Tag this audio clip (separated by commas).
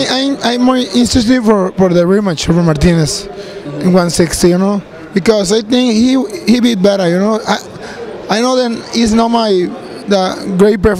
man speaking